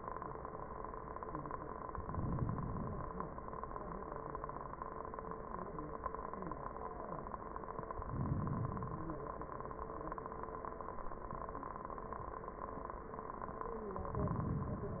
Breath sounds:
1.97-3.00 s: inhalation
8.06-9.09 s: inhalation
14.13-15.00 s: inhalation

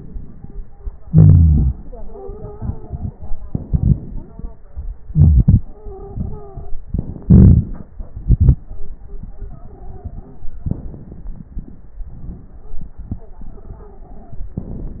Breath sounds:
1.00-3.39 s: exhalation
1.82-3.00 s: stridor
3.41-5.01 s: inhalation
4.06-4.61 s: stridor
5.04-6.85 s: exhalation
5.64-6.83 s: stridor
6.84-7.94 s: inhalation
7.97-10.64 s: exhalation
9.41-10.39 s: stridor
10.68-12.01 s: inhalation
10.68-12.01 s: crackles
12.02-14.54 s: exhalation
12.59-12.92 s: stridor
13.54-14.61 s: stridor

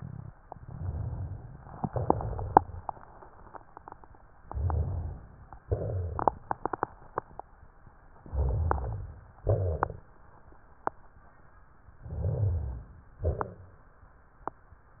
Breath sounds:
4.44-5.36 s: inhalation
4.52-5.20 s: rhonchi
5.67-6.20 s: rhonchi
5.67-6.42 s: exhalation
8.19-9.25 s: inhalation
8.29-9.16 s: rhonchi
9.45-9.78 s: rhonchi
9.47-10.01 s: exhalation
12.01-12.93 s: inhalation
12.01-12.93 s: rhonchi
13.23-13.83 s: exhalation

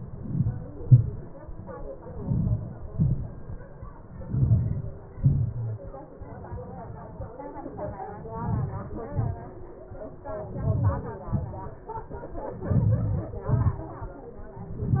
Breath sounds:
0.00-0.52 s: inhalation
0.80-1.14 s: exhalation
2.19-2.54 s: inhalation
2.99-3.35 s: exhalation
4.30-4.95 s: inhalation
5.12-5.57 s: exhalation
8.38-8.96 s: inhalation
9.20-9.57 s: exhalation
10.65-11.15 s: inhalation
11.27-11.57 s: exhalation
12.79-13.32 s: inhalation
13.55-13.89 s: exhalation

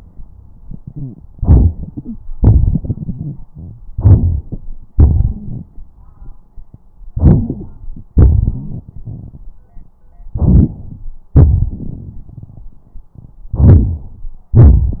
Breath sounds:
1.35-2.18 s: inhalation
1.96-2.18 s: wheeze
2.34-3.70 s: exhalation
2.34-3.70 s: crackles
3.94-4.62 s: inhalation
4.97-5.68 s: exhalation
5.26-5.64 s: wheeze
7.14-7.64 s: wheeze
7.14-8.05 s: inhalation
8.12-9.50 s: exhalation
8.44-8.81 s: wheeze
10.37-11.07 s: inhalation
10.37-11.07 s: crackles
11.36-12.72 s: exhalation
11.36-12.72 s: crackles
13.52-14.30 s: inhalation

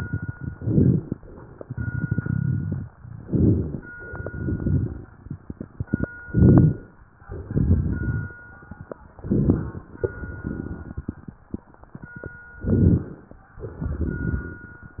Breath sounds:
0.46-1.14 s: inhalation
0.46-1.14 s: crackles
1.56-2.90 s: exhalation
1.56-2.90 s: crackles
3.23-3.91 s: inhalation
3.23-3.91 s: crackles
3.93-5.08 s: exhalation
3.93-5.08 s: crackles
6.28-6.96 s: inhalation
6.28-6.96 s: crackles
7.27-8.42 s: exhalation
7.27-8.42 s: crackles
9.22-9.91 s: inhalation
9.22-9.91 s: crackles
10.00-11.43 s: exhalation
10.00-11.43 s: crackles
12.64-13.42 s: inhalation
12.64-13.42 s: crackles
13.64-15.00 s: exhalation
13.64-15.00 s: crackles

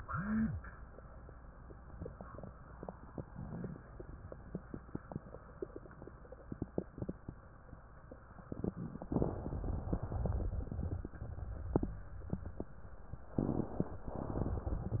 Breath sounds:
9.07-10.40 s: inhalation
10.45-11.78 s: exhalation
13.31-13.99 s: inhalation
14.03-15.00 s: exhalation

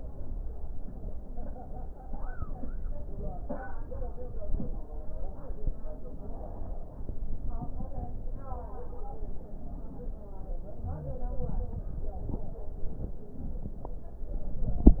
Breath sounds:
No breath sounds were labelled in this clip.

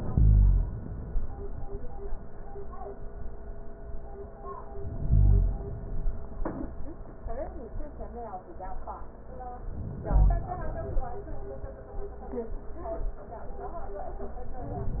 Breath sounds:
4.72-6.22 s: inhalation
9.70-11.20 s: inhalation

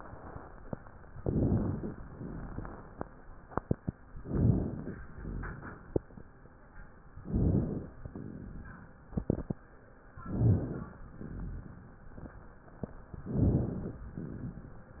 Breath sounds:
1.18-1.99 s: inhalation
2.11-2.92 s: exhalation
2.20-2.71 s: rhonchi
4.21-5.03 s: inhalation
5.07-5.88 s: exhalation
5.12-5.64 s: rhonchi
7.17-7.99 s: inhalation
8.08-8.90 s: exhalation
10.17-10.99 s: inhalation
11.16-11.97 s: exhalation
11.27-11.78 s: rhonchi
13.26-14.08 s: inhalation
14.17-14.99 s: exhalation

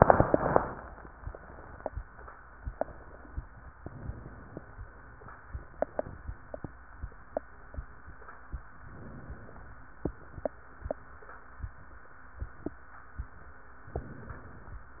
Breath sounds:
3.79-4.61 s: inhalation
8.92-9.73 s: inhalation
13.96-14.78 s: inhalation

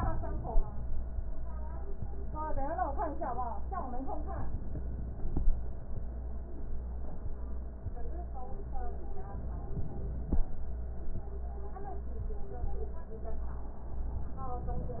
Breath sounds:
9.19-10.37 s: inhalation

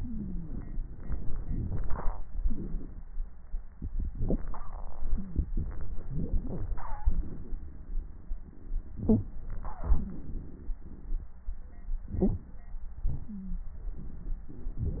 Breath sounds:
1.65-2.24 s: inhalation
2.43-3.04 s: exhalation
6.13-6.70 s: inhalation
7.04-8.39 s: exhalation
8.96-9.77 s: inhalation
9.83-11.27 s: exhalation
12.11-12.48 s: inhalation

